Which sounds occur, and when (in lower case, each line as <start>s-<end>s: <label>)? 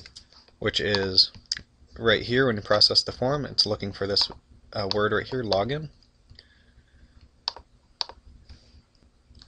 0.0s-0.5s: computer keyboard
0.0s-9.4s: mechanisms
0.6s-1.4s: man speaking
0.9s-1.0s: clicking
1.3s-1.6s: clicking
1.9s-4.4s: man speaking
4.2s-4.4s: clicking
4.7s-5.9s: man speaking
4.9s-5.0s: clicking
5.2s-5.4s: clicking
5.5s-5.6s: clicking
5.8s-6.4s: computer keyboard
6.3s-6.4s: tick
6.4s-7.3s: breathing
7.5s-7.6s: clicking
8.0s-8.2s: clicking
9.0s-9.1s: tick
9.4s-9.4s: clicking